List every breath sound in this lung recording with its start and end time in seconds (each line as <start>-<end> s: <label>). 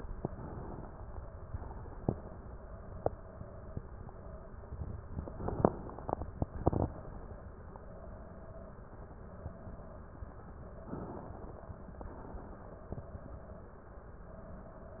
0.24-1.51 s: inhalation
1.51-2.58 s: exhalation
5.18-6.16 s: inhalation
6.16-7.13 s: exhalation
10.86-12.04 s: inhalation
12.04-13.02 s: exhalation